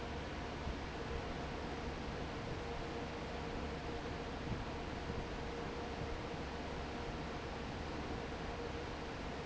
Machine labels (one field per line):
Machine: fan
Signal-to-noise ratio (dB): 0 dB